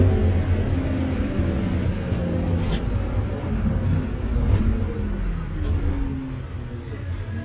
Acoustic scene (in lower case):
bus